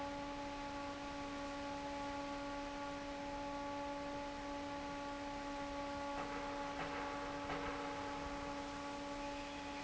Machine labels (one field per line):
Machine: fan